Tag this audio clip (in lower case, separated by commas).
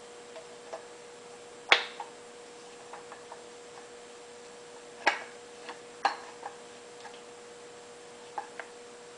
tick-tock